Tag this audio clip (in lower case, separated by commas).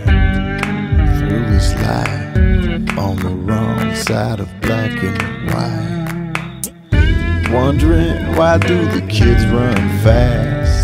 music